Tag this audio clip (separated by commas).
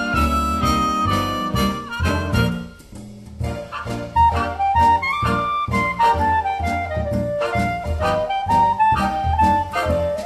Music